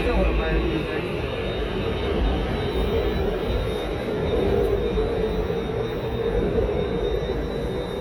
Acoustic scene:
subway station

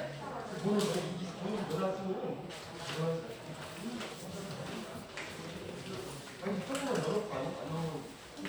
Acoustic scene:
crowded indoor space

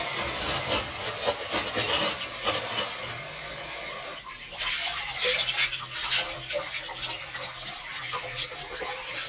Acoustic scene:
kitchen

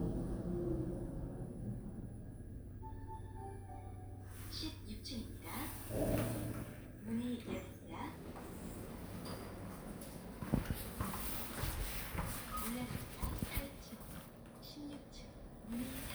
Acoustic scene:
elevator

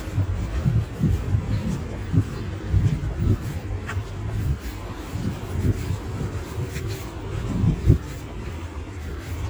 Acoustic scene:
residential area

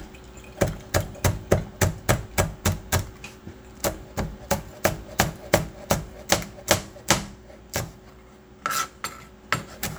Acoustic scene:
kitchen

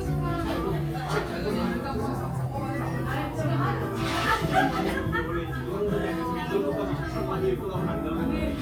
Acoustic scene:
crowded indoor space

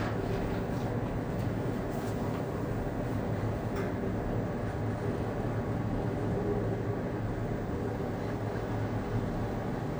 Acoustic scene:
elevator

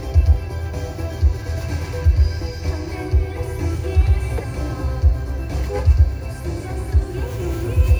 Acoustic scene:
car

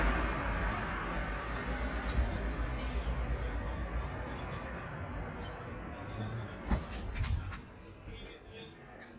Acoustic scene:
street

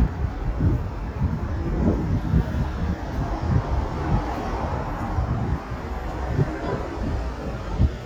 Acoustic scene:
street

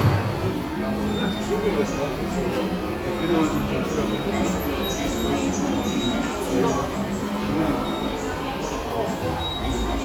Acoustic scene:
subway station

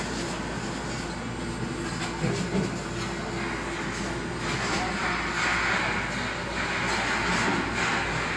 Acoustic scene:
cafe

